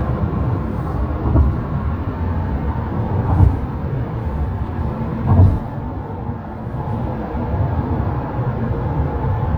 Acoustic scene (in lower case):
car